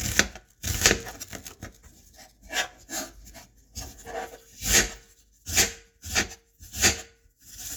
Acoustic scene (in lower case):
kitchen